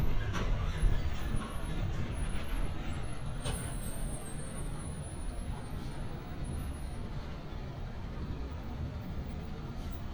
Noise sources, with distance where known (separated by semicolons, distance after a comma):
engine of unclear size, near